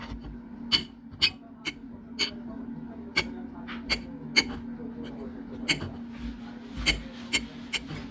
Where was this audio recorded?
in a kitchen